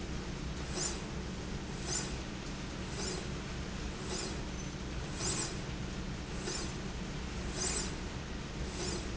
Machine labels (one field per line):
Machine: slide rail